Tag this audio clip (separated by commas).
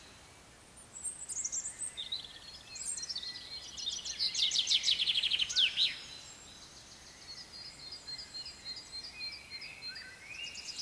mynah bird singing